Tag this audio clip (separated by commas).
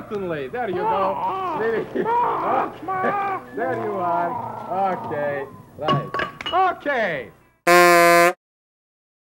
Speech